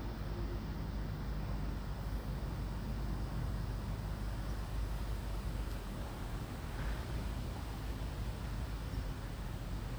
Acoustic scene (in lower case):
residential area